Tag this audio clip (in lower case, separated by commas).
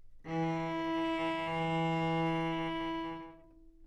bowed string instrument, music, musical instrument